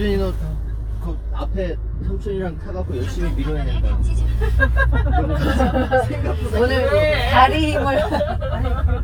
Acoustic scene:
car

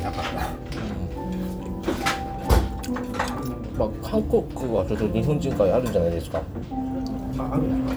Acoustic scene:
restaurant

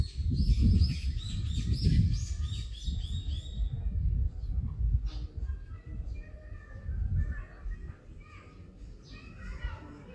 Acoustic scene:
park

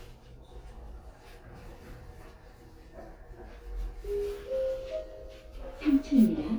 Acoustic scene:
elevator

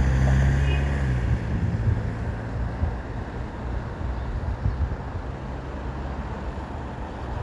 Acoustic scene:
street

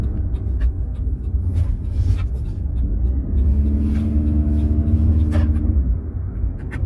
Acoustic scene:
car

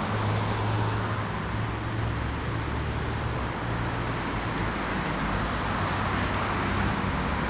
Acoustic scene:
street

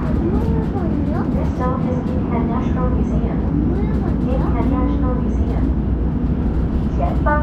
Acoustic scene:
subway train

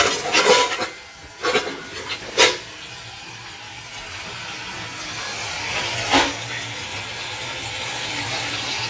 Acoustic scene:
kitchen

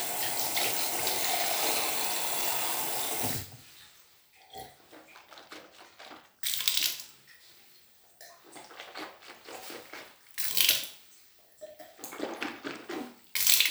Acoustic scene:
restroom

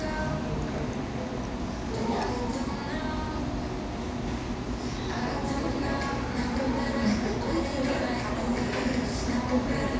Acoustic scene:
cafe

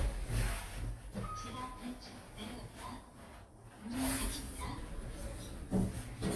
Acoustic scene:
elevator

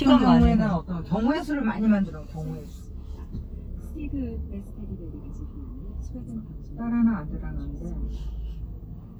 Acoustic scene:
car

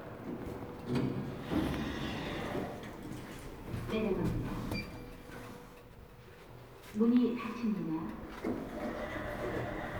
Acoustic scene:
elevator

